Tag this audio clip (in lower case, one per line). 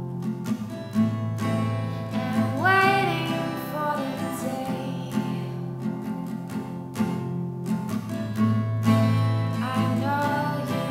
music
female singing